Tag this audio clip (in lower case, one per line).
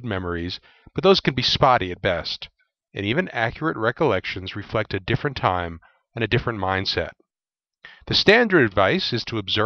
speech